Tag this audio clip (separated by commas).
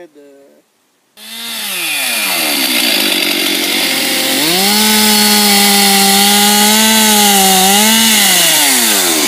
chainsawing trees